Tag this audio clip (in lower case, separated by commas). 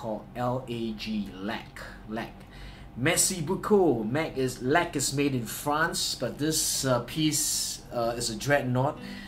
speech